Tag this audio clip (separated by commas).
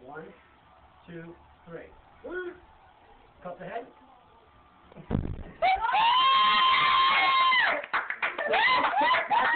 Speech